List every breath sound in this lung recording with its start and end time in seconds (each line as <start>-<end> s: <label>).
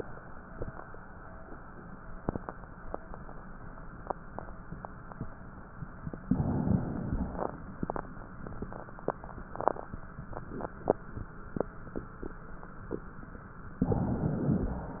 6.22-7.27 s: inhalation